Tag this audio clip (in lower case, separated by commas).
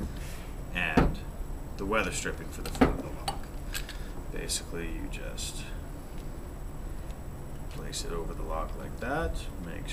speech